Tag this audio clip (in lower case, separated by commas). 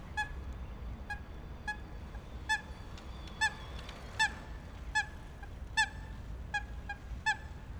bird, wild animals, animal